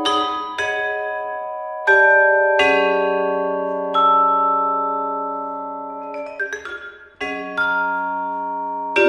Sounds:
Glockenspiel, Mallet percussion, xylophone

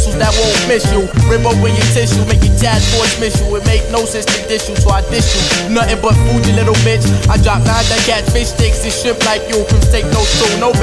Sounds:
Music, Pop music

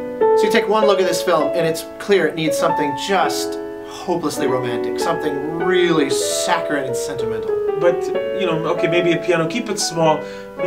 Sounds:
Music, Speech

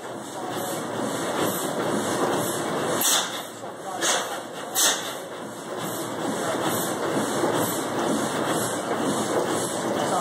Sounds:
Engine, Idling, Speech, Heavy engine (low frequency)

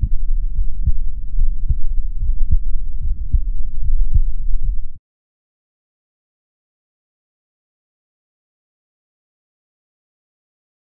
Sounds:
heartbeat

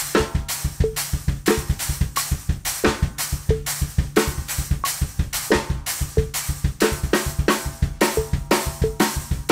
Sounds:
playing bass drum

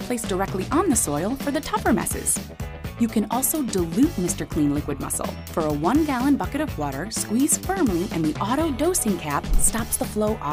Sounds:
Music, Speech

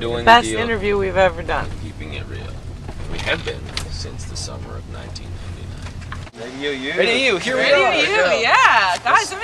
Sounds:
Speech

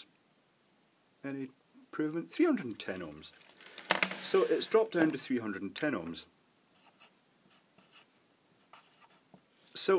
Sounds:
Speech, inside a small room, Writing

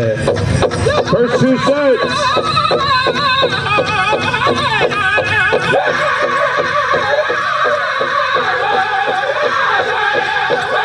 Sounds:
Speech, Music

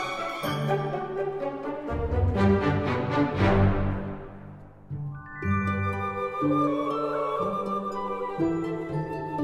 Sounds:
Music

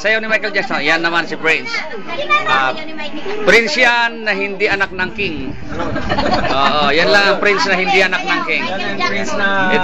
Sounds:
inside a small room, Speech

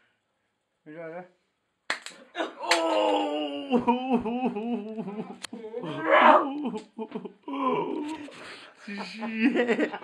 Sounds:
Speech

